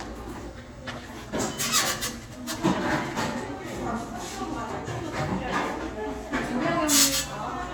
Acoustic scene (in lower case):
crowded indoor space